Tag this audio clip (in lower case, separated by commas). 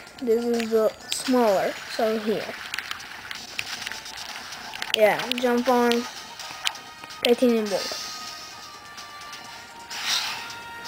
music, speech